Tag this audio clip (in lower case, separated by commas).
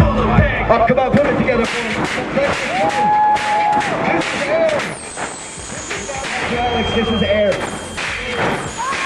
speech